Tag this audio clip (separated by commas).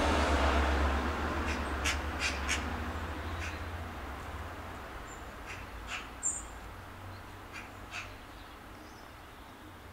magpie calling